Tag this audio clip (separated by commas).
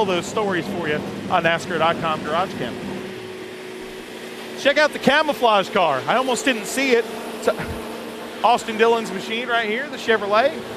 Vehicle, Car